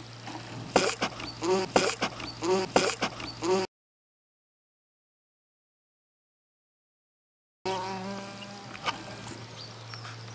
Insect buzzing and tapping